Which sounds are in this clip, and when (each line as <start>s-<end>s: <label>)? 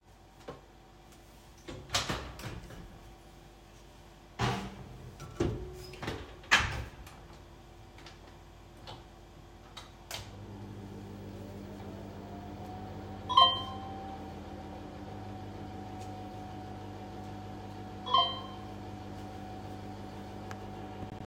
10.1s-21.3s: microwave
13.3s-13.7s: phone ringing
18.0s-18.5s: phone ringing